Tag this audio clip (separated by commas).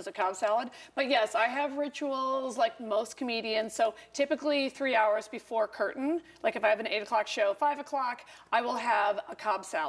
Speech